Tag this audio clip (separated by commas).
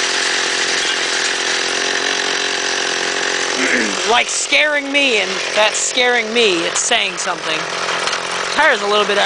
Motorcycle, Speech, Engine, Vehicle